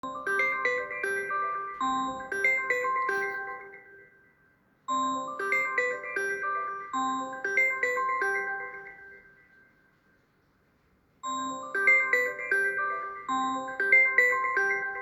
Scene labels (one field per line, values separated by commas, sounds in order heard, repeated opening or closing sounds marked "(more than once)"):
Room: bedroom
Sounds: phone ringing